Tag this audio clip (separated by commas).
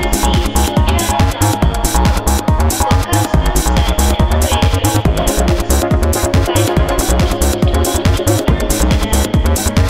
Video game music, Music